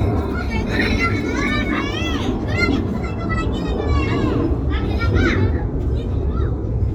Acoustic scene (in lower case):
residential area